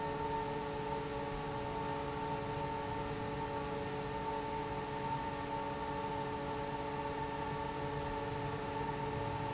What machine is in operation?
fan